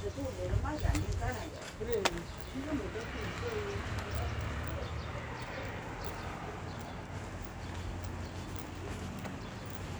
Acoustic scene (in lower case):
residential area